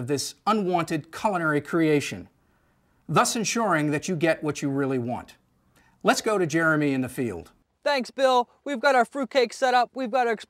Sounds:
Speech

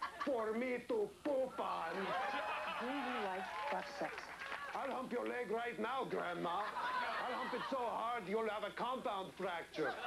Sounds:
Speech

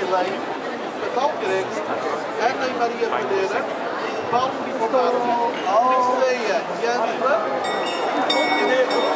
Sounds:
Speech

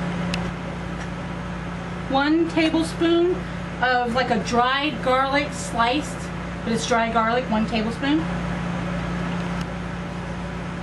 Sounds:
Speech

